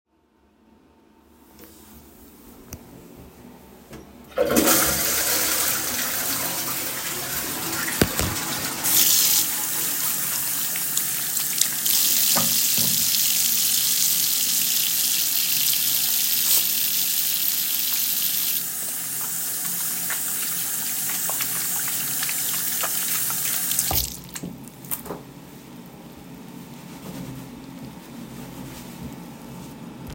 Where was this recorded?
bathroom